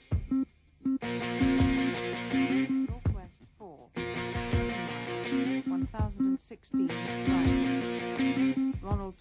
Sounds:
speech, music

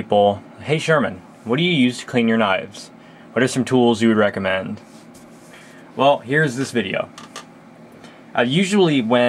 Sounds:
speech

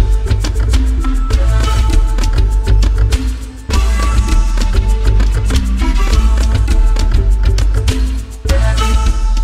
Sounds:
music

